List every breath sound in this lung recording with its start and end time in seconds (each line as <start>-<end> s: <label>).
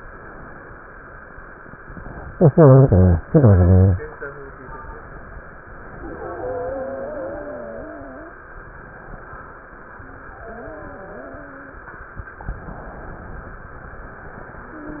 5.88-8.39 s: inhalation
5.88-8.39 s: wheeze
10.38-11.88 s: wheeze